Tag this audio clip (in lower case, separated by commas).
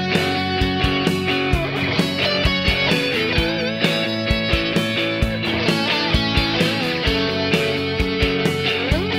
musical instrument, electric guitar, music, guitar